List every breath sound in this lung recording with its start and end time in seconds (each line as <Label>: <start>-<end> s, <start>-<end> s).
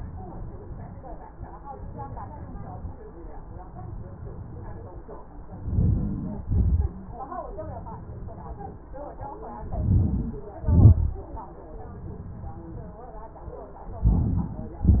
Inhalation: 5.45-6.30 s, 9.49-10.47 s, 13.87-14.64 s
Exhalation: 6.30-7.12 s, 10.51-11.40 s, 14.67-15.00 s